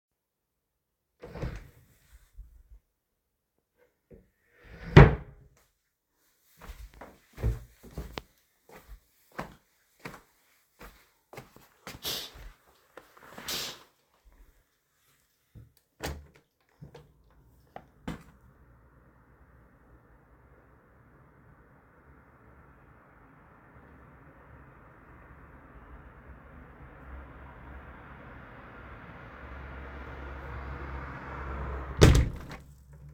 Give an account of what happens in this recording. The device is carried by hand during the recording. A wardrobe or cabinet is opened and closed first, followed by footsteps. Then the window is opened, street noise from passing cars becomes audible, and the window is closed again.